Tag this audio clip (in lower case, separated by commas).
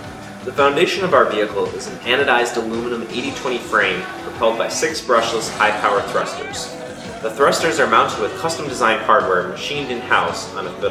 music, speech